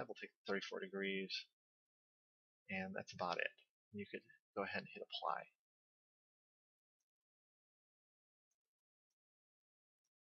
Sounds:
inside a small room, Speech

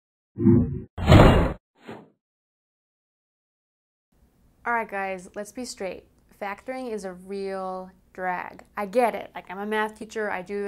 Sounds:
Speech, inside a small room

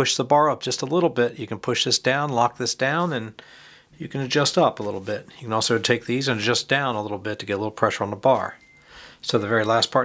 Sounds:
Speech

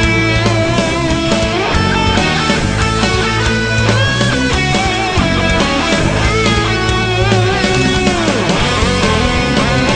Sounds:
Techno, Music

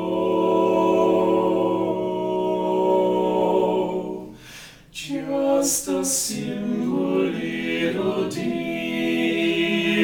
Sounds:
Lullaby

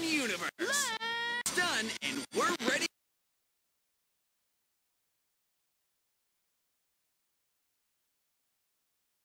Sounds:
Speech

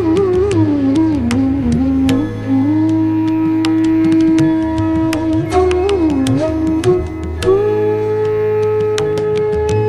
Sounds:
Flute, Musical instrument, woodwind instrument, Music, Carnatic music

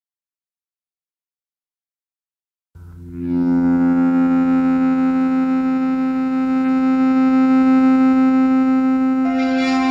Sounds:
Distortion, Music

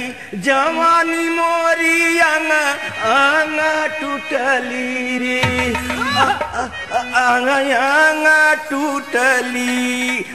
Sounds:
Music

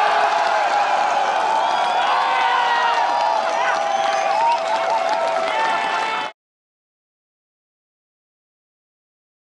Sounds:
Speech

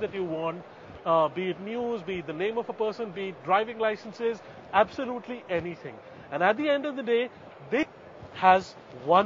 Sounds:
Speech

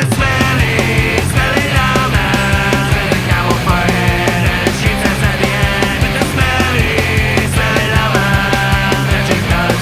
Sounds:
Music

